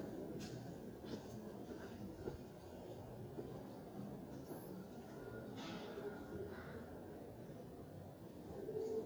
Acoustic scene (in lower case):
residential area